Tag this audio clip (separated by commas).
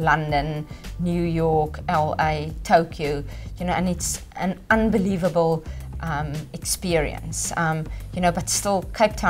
Speech, Music